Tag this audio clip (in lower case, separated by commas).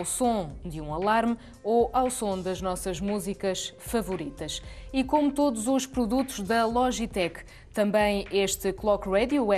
speech